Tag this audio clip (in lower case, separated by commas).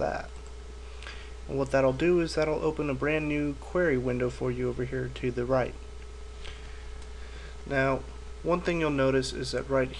speech